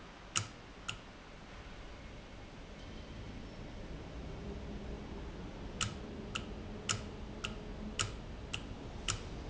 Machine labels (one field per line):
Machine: valve